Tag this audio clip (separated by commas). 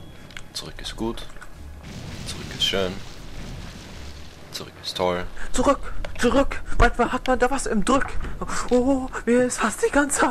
Speech